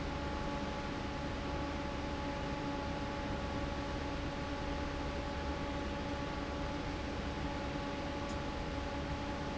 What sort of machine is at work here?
fan